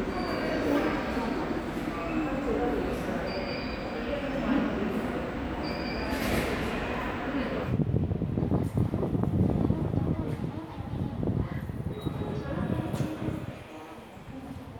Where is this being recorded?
in a subway station